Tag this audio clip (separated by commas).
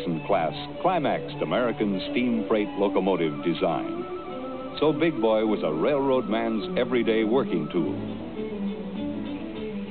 Music, Speech